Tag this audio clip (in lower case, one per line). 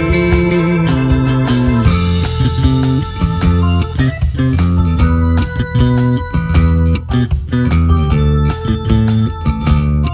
guitar
strum
electric guitar
plucked string instrument
musical instrument
music